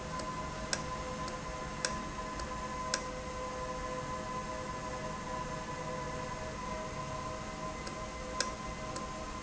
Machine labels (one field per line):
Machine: valve